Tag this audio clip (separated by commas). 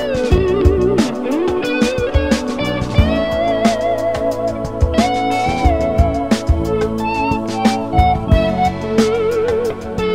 Plucked string instrument, Music, Strum, Electric guitar, Musical instrument, Guitar